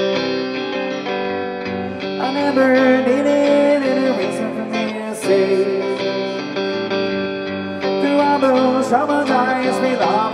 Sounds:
singing
music

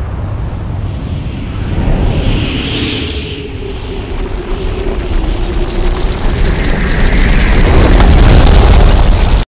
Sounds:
explosion

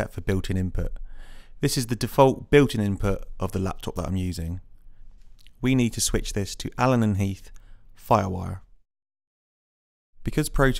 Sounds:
speech

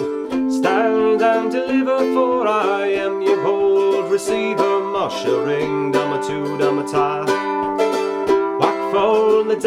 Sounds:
playing mandolin

